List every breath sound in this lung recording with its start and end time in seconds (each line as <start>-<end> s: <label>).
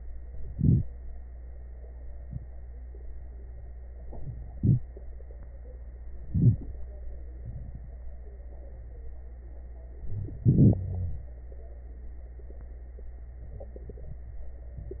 0.50-0.84 s: inhalation
4.50-4.84 s: inhalation
6.34-6.62 s: wheeze
6.34-6.68 s: inhalation
10.11-10.35 s: wheeze
10.11-11.32 s: inhalation
10.80-11.29 s: wheeze